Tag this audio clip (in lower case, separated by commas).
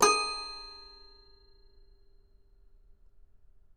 music, keyboard (musical), musical instrument